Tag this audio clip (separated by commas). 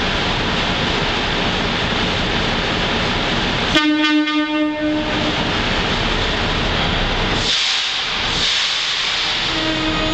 Hiss, Steam whistle, Steam